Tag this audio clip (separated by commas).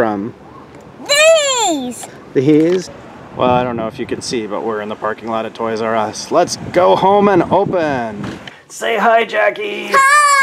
Child speech, Vehicle, inside a small room, outside, urban or man-made, Speech